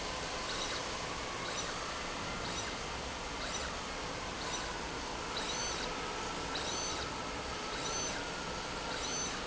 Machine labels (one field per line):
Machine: slide rail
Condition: abnormal